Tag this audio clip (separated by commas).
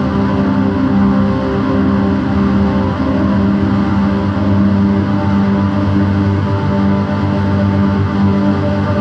Music